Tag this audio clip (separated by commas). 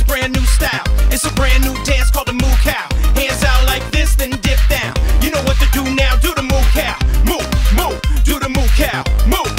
Music